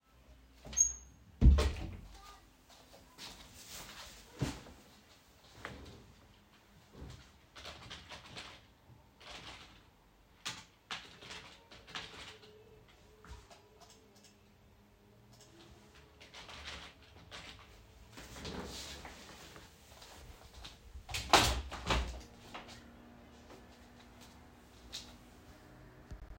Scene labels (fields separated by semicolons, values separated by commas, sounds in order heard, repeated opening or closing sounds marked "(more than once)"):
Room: office; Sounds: window (more than once), keyboard typing